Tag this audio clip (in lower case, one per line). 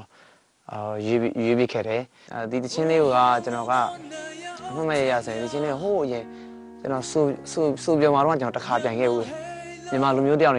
music
speech